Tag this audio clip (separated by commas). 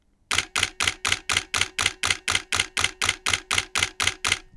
Mechanisms, Camera